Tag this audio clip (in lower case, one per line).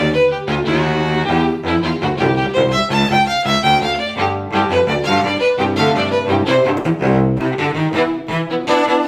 musical instrument
fiddle
cello
music